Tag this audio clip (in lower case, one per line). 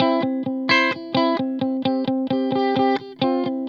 musical instrument
electric guitar
music
guitar
plucked string instrument